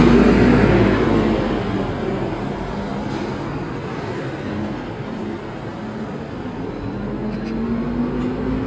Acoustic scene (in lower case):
street